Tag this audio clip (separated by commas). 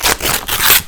Tearing